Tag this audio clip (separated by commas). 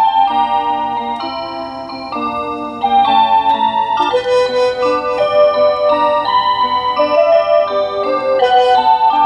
Music